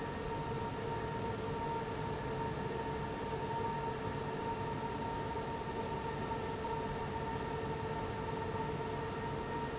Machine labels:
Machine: fan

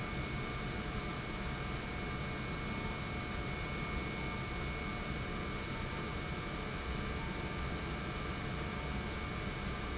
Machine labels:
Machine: pump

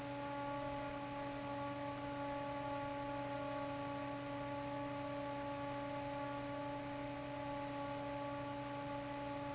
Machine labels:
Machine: fan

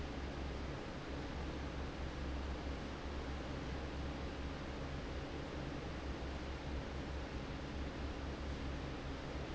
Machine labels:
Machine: fan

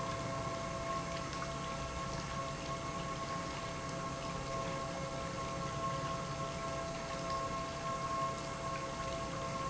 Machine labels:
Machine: pump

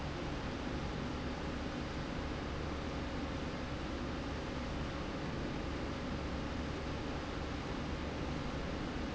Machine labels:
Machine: slide rail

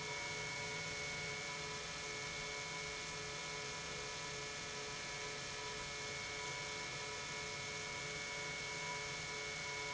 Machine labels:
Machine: pump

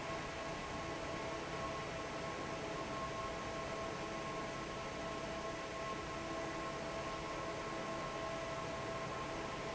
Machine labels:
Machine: fan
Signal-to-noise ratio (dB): 0 dB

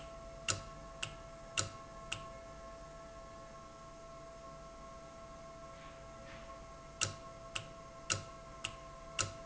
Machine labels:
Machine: valve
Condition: normal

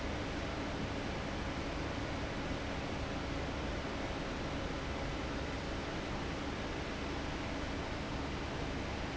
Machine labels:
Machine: fan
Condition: abnormal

